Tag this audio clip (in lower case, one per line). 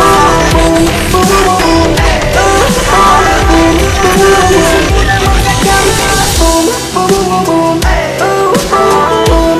music
dubstep
electronic music